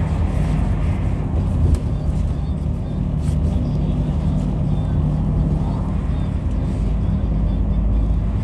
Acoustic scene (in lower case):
bus